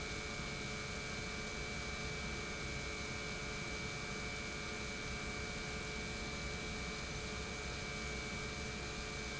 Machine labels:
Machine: pump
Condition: normal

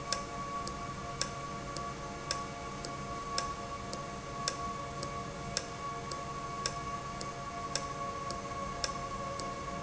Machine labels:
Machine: valve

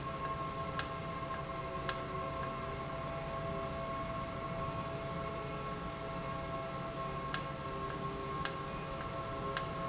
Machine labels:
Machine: valve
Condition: normal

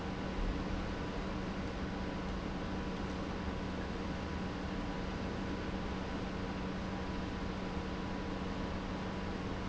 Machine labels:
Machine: pump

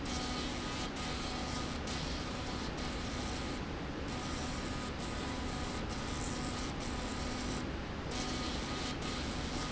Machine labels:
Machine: slide rail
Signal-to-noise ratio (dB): -6 dB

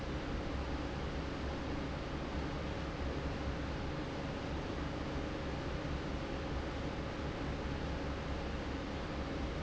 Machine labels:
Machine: fan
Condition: normal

